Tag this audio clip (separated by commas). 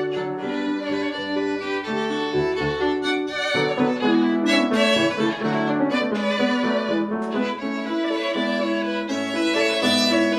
Music